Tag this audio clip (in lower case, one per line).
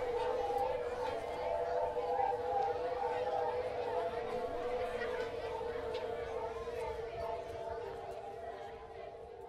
crowd
hubbub